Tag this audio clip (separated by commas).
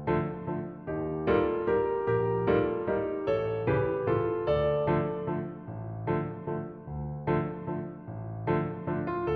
Music